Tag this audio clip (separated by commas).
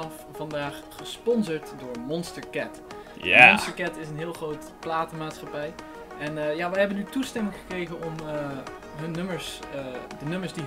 Speech, Music